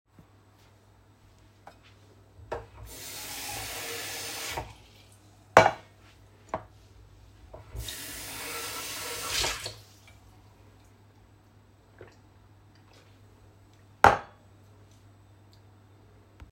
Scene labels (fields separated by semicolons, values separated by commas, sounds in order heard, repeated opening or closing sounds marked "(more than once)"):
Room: kitchen; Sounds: running water, cutlery and dishes